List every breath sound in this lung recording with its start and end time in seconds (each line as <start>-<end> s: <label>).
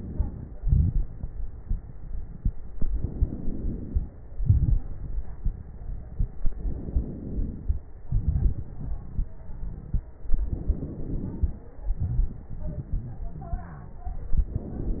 0.00-0.56 s: inhalation
0.54-2.84 s: crackles
0.56-2.86 s: exhalation
2.86-4.17 s: inhalation
4.20-6.45 s: exhalation
4.21-6.45 s: crackles
6.47-7.78 s: inhalation
7.78-10.46 s: exhalation
7.82-10.45 s: crackles
10.49-11.80 s: inhalation
11.79-14.15 s: exhalation
14.16-15.00 s: inhalation